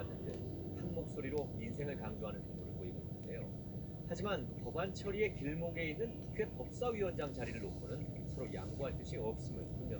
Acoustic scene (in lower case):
car